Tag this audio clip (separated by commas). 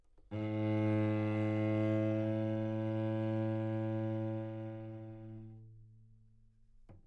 Bowed string instrument, Musical instrument, Music